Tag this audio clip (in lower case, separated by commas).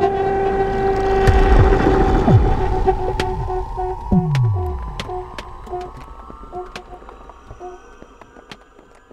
music